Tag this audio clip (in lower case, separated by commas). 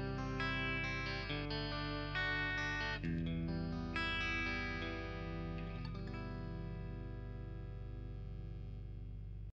music, plucked string instrument, musical instrument, guitar, acoustic guitar